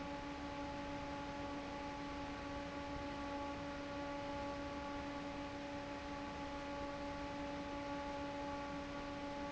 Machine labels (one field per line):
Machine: fan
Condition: normal